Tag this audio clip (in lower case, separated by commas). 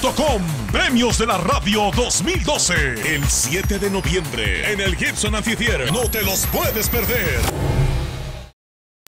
music, speech